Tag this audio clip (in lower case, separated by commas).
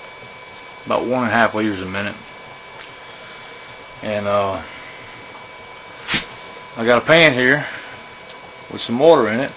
speech